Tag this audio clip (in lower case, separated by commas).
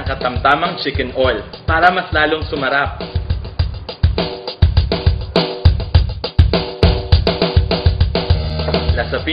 music, speech